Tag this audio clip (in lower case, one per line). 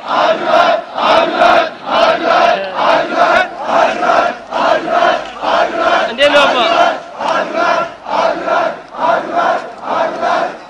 speech